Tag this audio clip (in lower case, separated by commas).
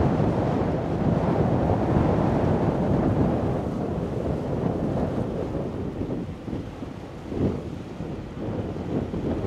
wind, wind noise (microphone), boat, ship